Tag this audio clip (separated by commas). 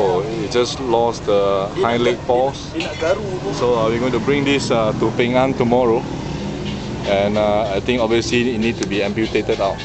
Speech